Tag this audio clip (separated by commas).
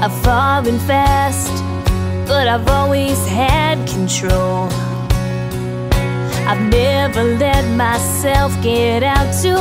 Music